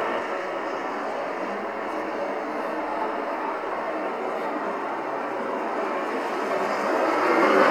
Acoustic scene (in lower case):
street